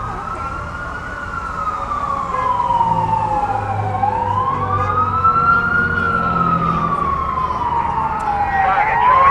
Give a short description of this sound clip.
Siren is blaring combined with traffic noise and horns followed by a girl speaking in the background and a man speaking into a radio